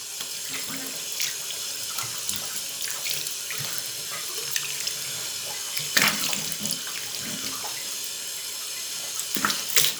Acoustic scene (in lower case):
restroom